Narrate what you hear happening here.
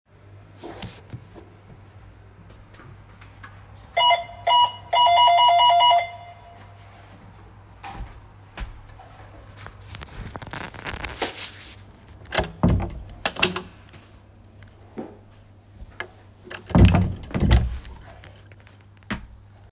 I was on the entrance area at that time my friend rang the bell so I opened the door with the key.